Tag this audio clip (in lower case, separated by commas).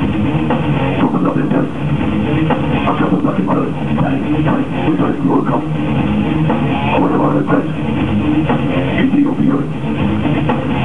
rock music, singing, music